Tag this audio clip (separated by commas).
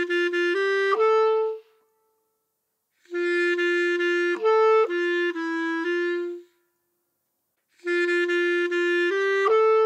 playing clarinet